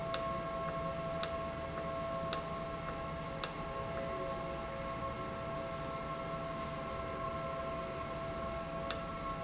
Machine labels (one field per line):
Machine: valve